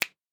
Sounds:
Finger snapping, Hands

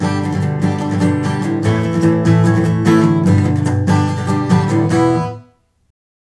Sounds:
Acoustic guitar, Guitar, Musical instrument, Music, Plucked string instrument

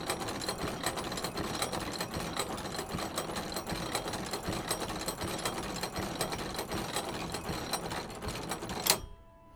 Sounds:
Mechanisms

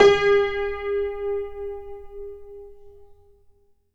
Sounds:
Music, Keyboard (musical), Musical instrument, Piano

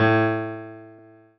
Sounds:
Music, Musical instrument, Keyboard (musical), Piano

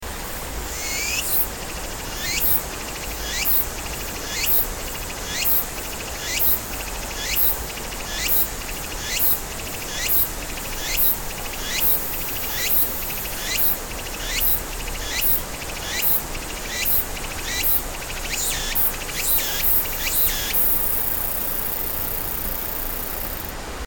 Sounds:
Stream, Water

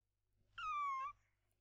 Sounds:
Animal, Domestic animals, Meow, Cat

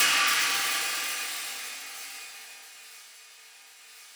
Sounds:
Hi-hat, Cymbal, Musical instrument, Music, Percussion

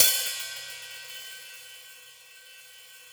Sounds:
Cymbal, Musical instrument, Percussion, Music, Hi-hat

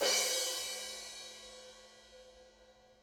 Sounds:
Musical instrument, Percussion, Cymbal, Crash cymbal, Music

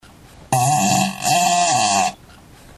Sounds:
Fart

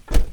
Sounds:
Motor vehicle (road), Vehicle, Car

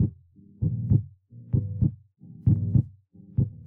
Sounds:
Music, Musical instrument, Plucked string instrument, Bass guitar, Guitar

